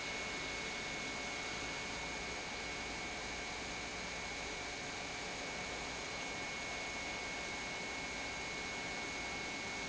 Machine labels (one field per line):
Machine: pump